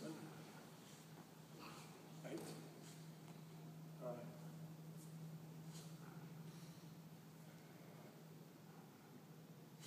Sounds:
Speech

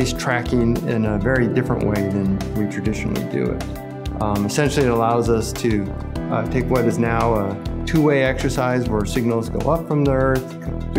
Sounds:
Speech, Music

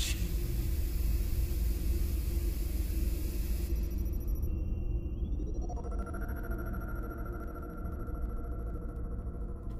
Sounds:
Music, Speech

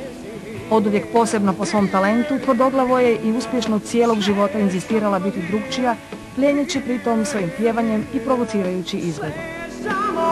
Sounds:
Music, Speech

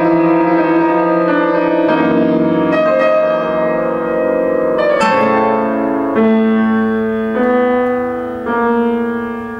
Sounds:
Guitar, Plucked string instrument, Acoustic guitar, Music, Musical instrument

